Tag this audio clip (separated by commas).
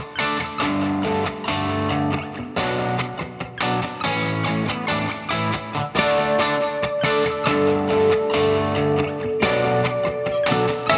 Music, Effects unit